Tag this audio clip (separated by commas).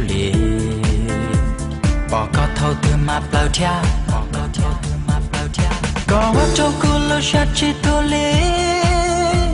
Music